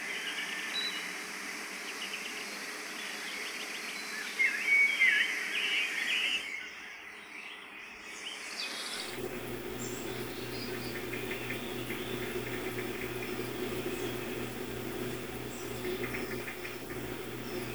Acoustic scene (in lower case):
park